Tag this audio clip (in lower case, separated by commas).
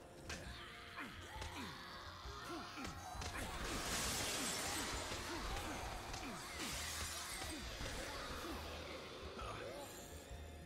smash, whack